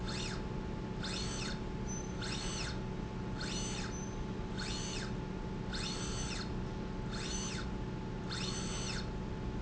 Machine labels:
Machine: slide rail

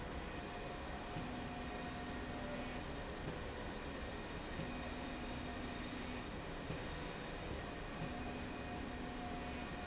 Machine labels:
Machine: slide rail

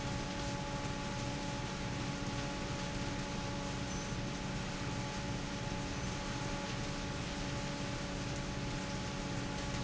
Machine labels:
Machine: fan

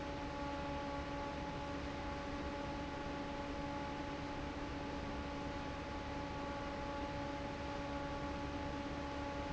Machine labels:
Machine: fan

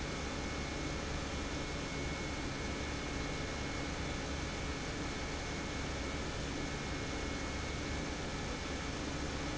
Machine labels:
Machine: pump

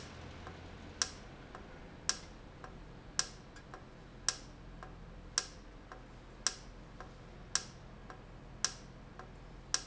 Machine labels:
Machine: valve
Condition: normal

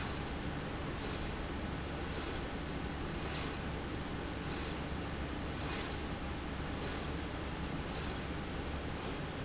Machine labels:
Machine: slide rail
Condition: normal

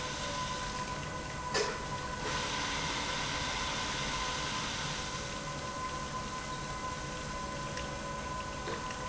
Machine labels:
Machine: pump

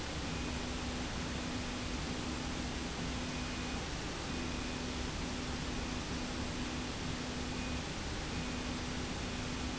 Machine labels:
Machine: slide rail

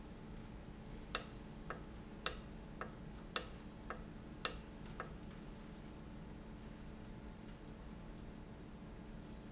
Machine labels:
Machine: valve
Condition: normal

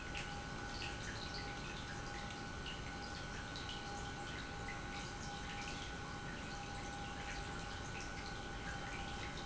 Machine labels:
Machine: pump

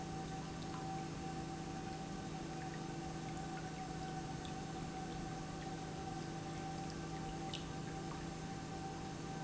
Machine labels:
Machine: pump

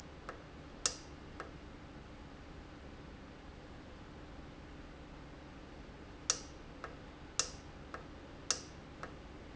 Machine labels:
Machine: valve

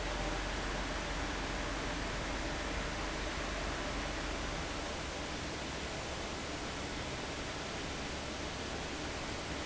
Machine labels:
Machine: fan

